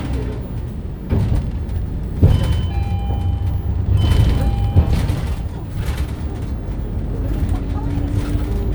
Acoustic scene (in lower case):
bus